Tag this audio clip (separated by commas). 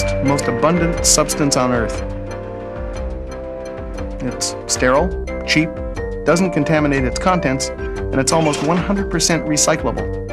Speech, Music